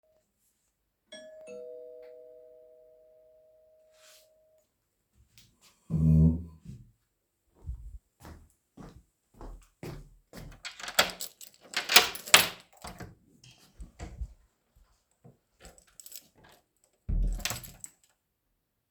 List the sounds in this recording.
bell ringing, footsteps, keys, door